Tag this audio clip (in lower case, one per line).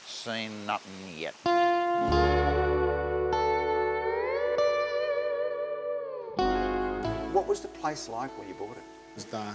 effects unit
electric guitar